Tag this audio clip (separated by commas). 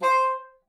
Musical instrument, Music, woodwind instrument